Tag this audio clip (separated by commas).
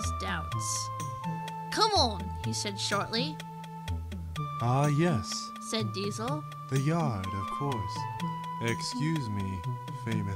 inside a small room, Music, Speech